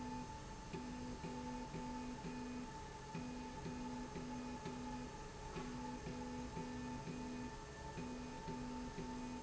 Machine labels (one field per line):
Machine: slide rail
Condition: normal